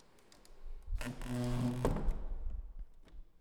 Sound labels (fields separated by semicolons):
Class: door; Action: closing